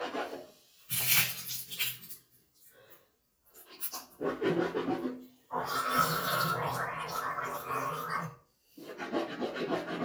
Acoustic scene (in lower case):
restroom